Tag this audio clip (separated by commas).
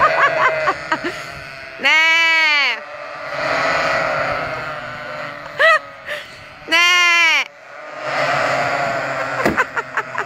sheep bleating